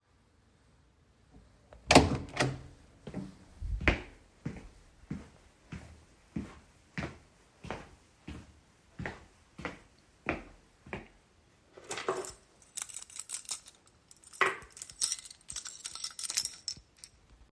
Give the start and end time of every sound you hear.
1.9s-2.7s: door
3.0s-11.1s: footsteps
11.7s-17.1s: keys

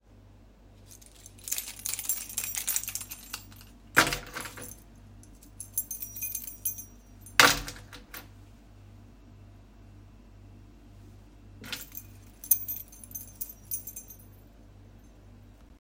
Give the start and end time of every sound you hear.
1.0s-4.9s: keys
5.6s-8.3s: keys
11.5s-14.2s: keys

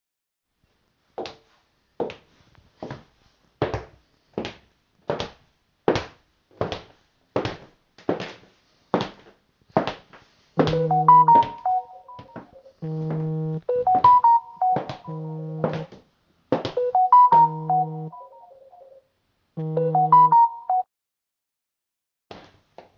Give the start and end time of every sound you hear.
1.1s-18.2s: footsteps
10.5s-20.9s: phone ringing
22.3s-23.0s: footsteps

